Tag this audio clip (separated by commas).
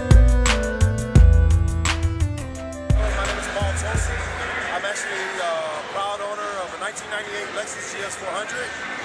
Music, Speech